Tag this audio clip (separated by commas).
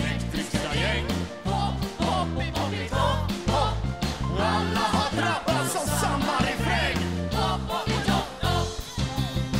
Music